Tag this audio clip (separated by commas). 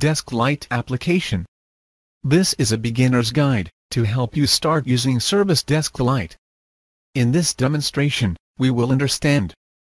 Speech